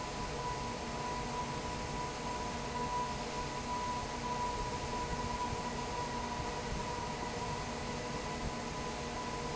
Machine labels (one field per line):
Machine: fan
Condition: abnormal